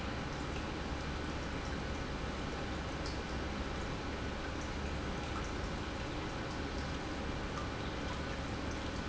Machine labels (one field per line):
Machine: pump